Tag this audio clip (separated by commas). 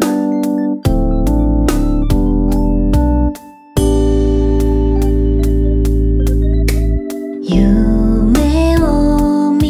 Sound effect, Music